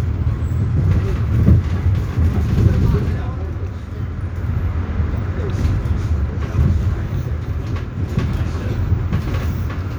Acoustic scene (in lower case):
bus